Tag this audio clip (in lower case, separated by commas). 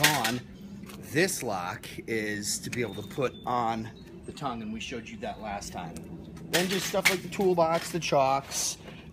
speech, tools